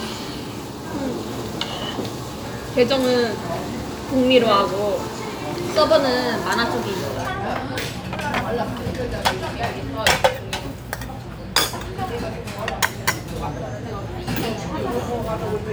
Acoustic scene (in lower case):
restaurant